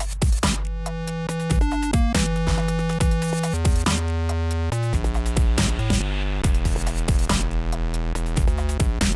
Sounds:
Dubstep, Electronic music, Music

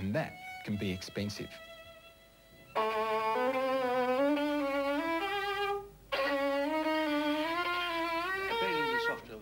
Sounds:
fiddle, Speech, Music, Musical instrument

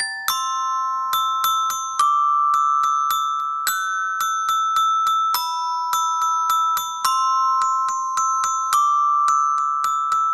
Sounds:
Marimba, Glockenspiel, Mallet percussion

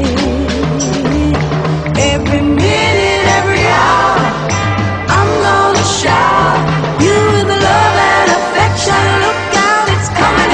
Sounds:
Music

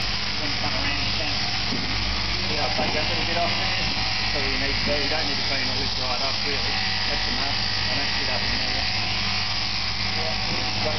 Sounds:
Speech, electric razor

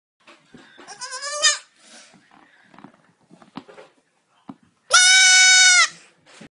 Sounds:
Animal, Sheep, Goat, Bleat, pets

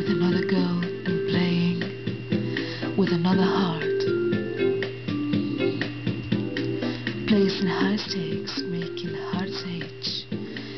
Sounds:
Female singing, Music

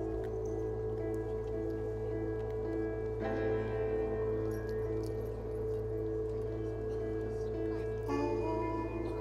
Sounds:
Speech, Music, outside, rural or natural

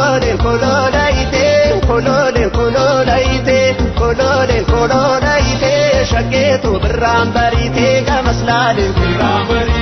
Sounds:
Music, Folk music

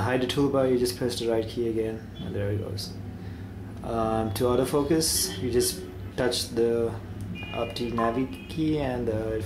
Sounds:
Speech

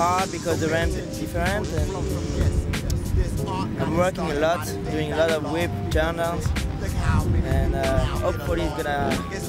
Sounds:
Music, Speech

